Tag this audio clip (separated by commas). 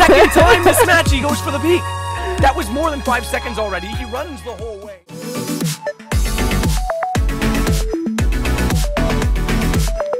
Music, Speech